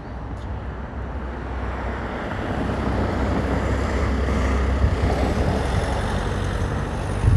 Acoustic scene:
street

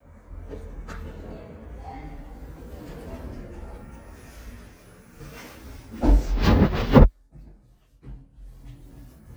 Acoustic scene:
elevator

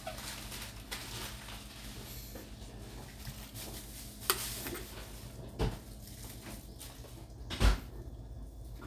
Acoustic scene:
kitchen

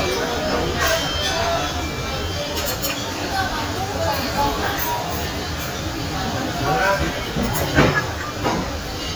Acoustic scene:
crowded indoor space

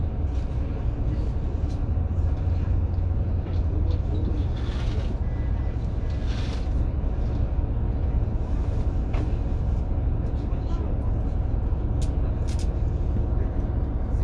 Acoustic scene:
bus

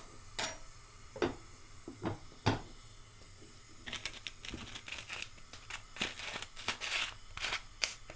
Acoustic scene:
kitchen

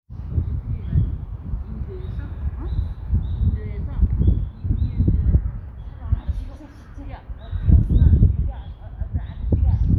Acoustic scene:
residential area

